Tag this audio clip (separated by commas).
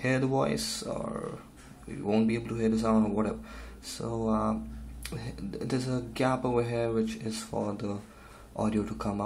Speech